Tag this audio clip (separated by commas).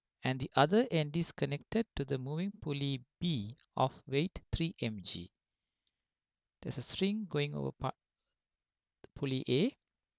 Speech